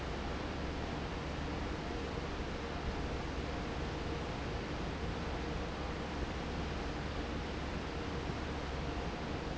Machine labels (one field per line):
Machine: fan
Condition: normal